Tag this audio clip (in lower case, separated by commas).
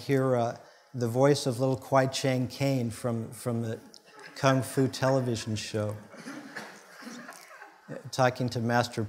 speech